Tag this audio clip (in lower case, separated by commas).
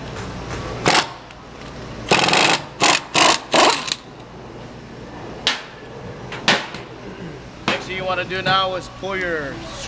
scrape, inside a small room, speech